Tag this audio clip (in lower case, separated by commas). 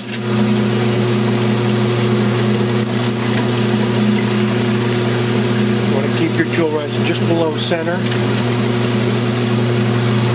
speech